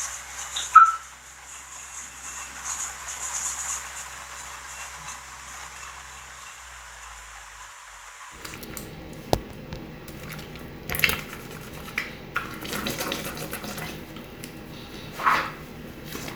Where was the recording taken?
in a restroom